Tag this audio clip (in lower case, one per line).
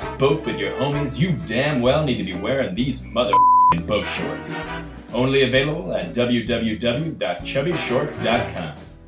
music
speech